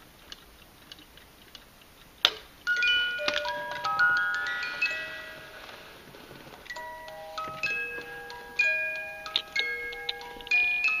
A music box is chiming